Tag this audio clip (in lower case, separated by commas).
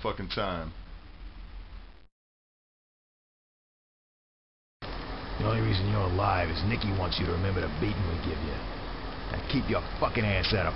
speech